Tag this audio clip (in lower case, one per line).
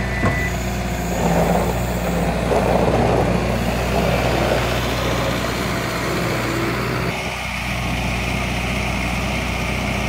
truck
vehicle